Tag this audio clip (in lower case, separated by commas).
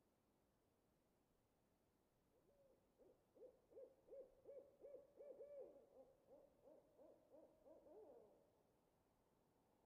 owl hooting